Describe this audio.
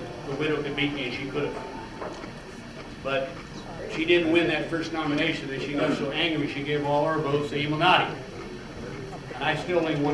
An adult male is speaking